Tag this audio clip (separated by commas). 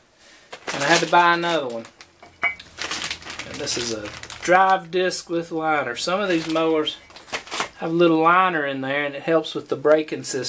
Speech